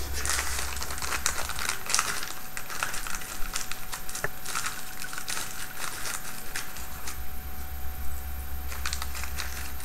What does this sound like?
Crumpling sound